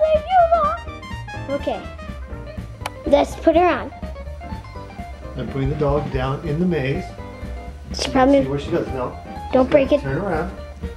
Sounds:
music, speech

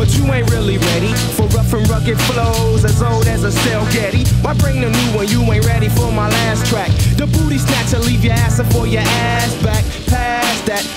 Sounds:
music

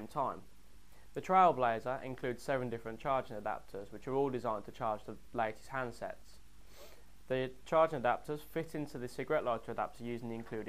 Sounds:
speech

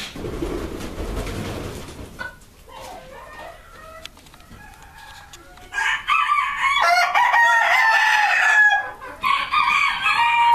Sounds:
cluck, chicken, chicken clucking

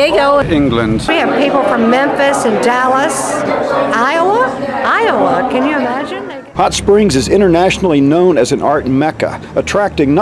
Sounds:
speech

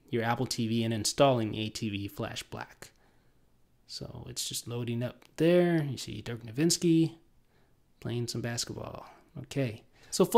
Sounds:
speech, inside a small room

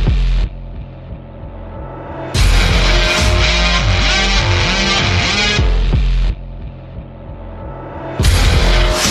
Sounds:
music, jazz

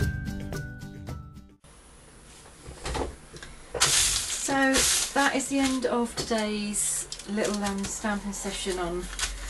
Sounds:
speech, music

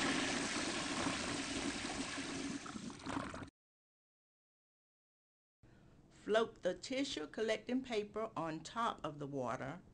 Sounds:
speech, water

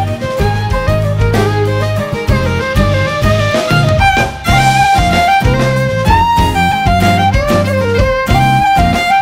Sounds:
music

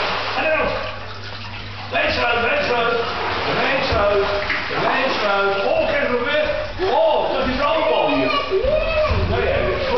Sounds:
speech

